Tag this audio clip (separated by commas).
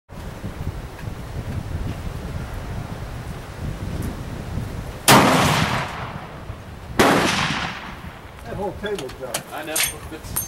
Machine gun, Speech